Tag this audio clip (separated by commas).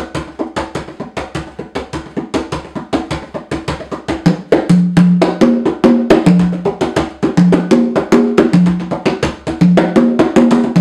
Drum, Percussion